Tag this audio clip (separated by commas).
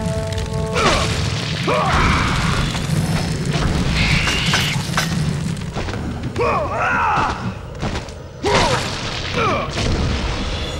Boom, Music